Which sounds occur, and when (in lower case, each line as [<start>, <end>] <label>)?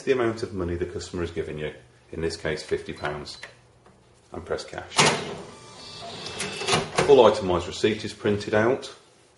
[0.00, 1.72] man speaking
[0.00, 9.35] background noise
[2.10, 3.50] man speaking
[3.36, 3.46] tap
[3.77, 3.92] tap
[4.29, 5.36] man speaking
[4.74, 4.82] tap
[4.86, 5.34] cash register
[5.46, 7.08] cash register
[6.68, 6.77] tap
[6.91, 7.05] tap
[6.97, 9.01] man speaking